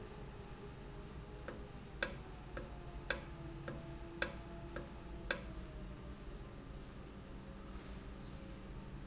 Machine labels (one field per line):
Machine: valve